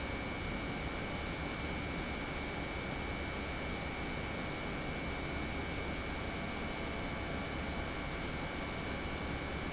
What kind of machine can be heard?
pump